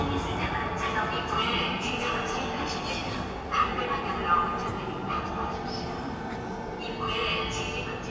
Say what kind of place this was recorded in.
subway station